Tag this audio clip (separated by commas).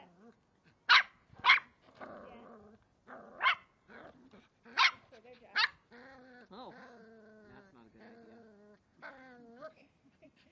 Yip, pets, Dog, Animal